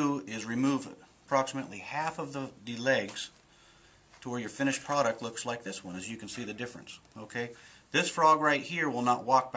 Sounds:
speech

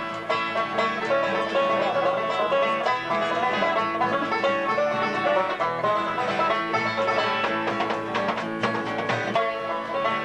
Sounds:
music, musical instrument

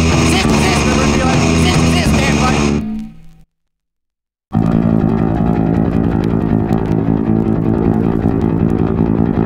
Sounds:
rock music, punk rock, music

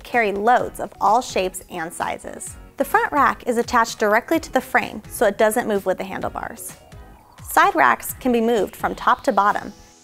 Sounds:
music, speech

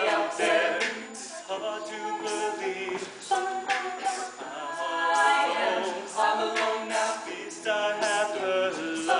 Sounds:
a capella, singing

